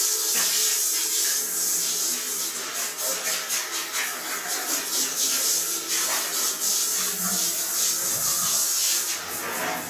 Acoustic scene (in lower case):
restroom